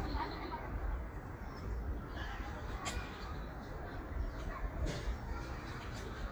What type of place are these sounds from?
park